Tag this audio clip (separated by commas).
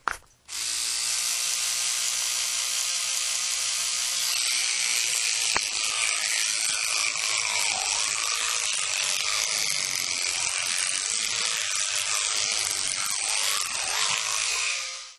Engine, home sounds